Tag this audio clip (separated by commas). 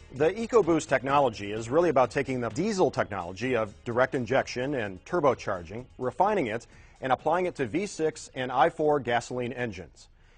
Music, Speech